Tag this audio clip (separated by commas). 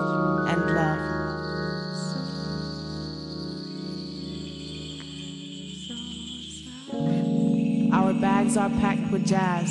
Music, Keys jangling